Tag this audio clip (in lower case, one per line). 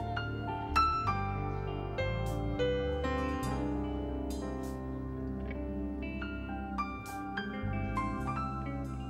music